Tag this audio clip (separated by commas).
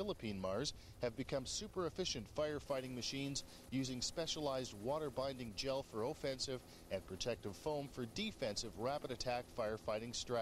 Speech